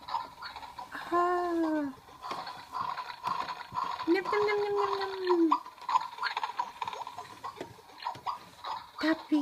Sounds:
Speech, inside a small room

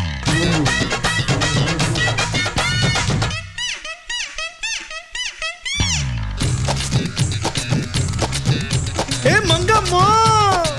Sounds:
Singing, Music

